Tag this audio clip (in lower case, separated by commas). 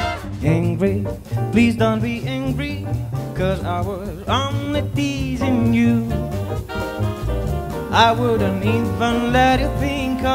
music, jazz